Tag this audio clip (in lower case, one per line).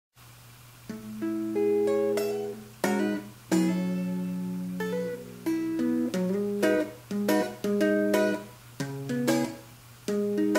musical instrument
music
plucked string instrument
guitar